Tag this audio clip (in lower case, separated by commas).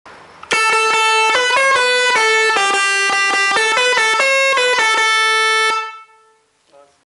honking, speech